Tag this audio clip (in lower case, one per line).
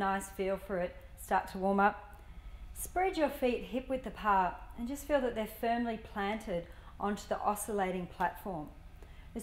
speech